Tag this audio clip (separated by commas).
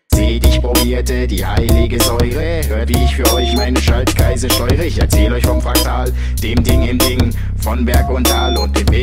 Hip hop music, Music